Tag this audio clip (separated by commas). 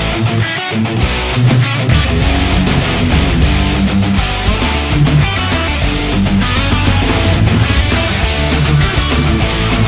Bass guitar, Plucked string instrument, Guitar, Musical instrument, Music, Electric guitar, Strum